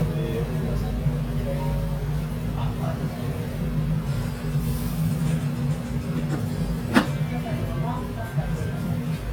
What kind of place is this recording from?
restaurant